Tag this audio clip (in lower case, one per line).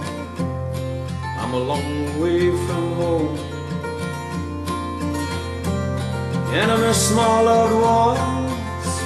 music